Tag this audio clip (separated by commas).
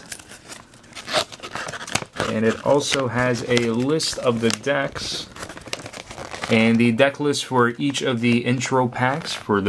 Speech, Crumpling